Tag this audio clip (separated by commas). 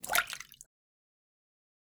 Liquid, splatter